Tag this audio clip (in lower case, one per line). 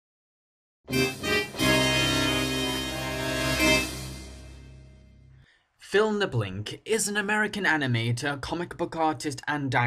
music
speech